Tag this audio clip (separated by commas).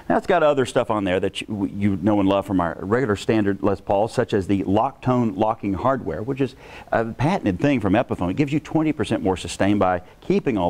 Speech